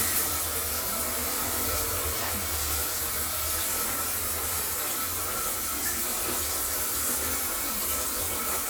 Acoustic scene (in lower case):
restroom